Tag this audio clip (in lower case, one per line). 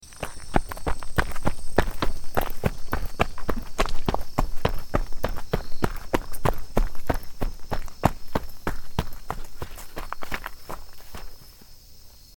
run